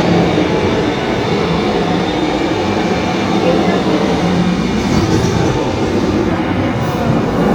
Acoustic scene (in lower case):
subway train